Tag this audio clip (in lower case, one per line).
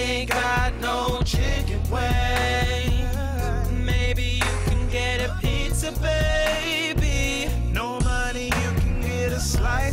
music